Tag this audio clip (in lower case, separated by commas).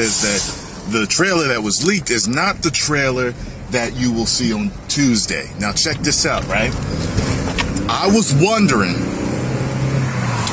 motor vehicle (road), speech, vehicle